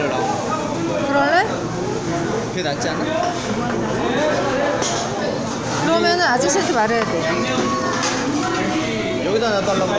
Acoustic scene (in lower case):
restaurant